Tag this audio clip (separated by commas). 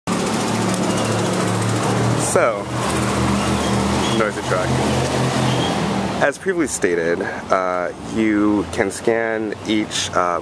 Speech, outside, urban or man-made